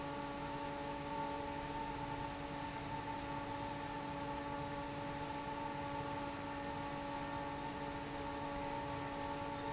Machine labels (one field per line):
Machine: fan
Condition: normal